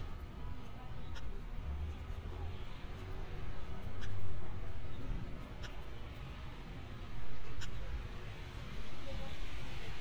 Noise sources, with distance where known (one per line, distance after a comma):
person or small group talking, far